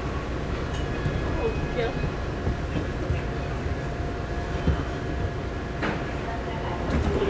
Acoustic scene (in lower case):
subway train